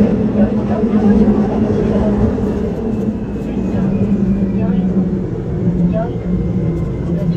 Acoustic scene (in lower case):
subway train